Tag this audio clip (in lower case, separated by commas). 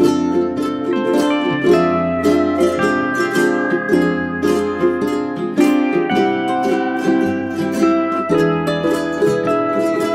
music